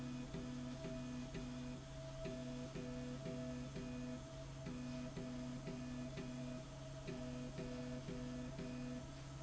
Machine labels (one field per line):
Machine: slide rail